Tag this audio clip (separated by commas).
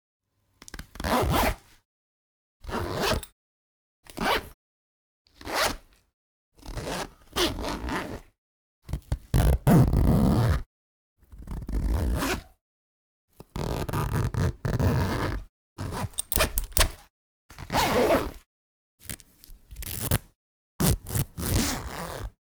Zipper (clothing), Domestic sounds